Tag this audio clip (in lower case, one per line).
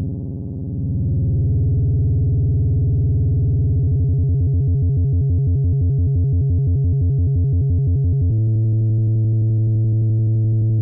synthesizer